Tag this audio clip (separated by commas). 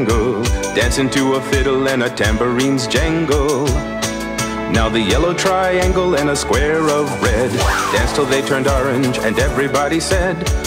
Music